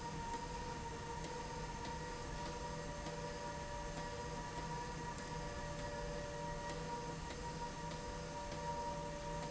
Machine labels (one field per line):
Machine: slide rail